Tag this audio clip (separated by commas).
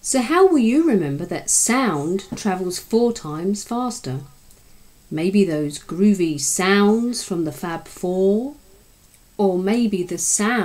Speech